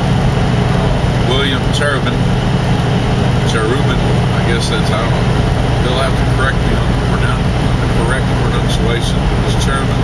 A man speaks over a truck motor running